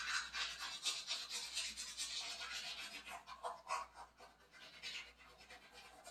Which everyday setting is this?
restroom